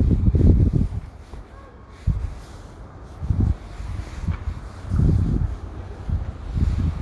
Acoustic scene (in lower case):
residential area